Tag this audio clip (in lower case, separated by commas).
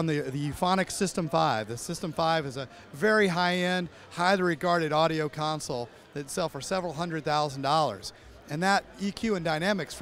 speech